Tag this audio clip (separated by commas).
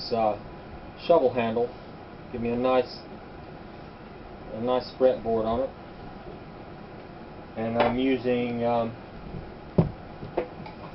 Speech